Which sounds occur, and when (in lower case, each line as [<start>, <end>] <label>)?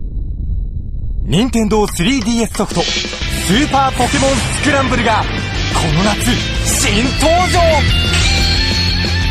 [0.00, 9.30] video game sound
[1.22, 3.20] male speech
[1.30, 9.30] music
[3.59, 5.22] male speech
[5.60, 7.92] male speech